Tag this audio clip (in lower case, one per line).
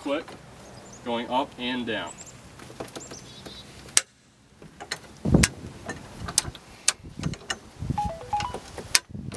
speech